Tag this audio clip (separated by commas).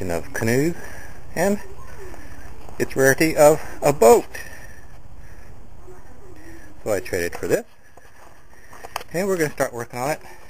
Speech